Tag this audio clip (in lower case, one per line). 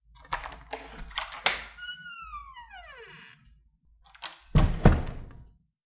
squeak